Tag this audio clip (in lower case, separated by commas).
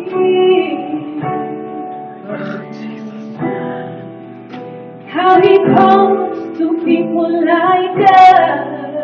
female singing, music